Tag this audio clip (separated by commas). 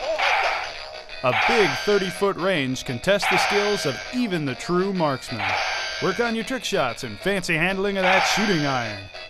Music, Speech